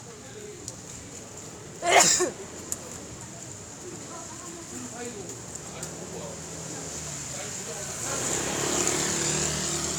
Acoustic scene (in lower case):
residential area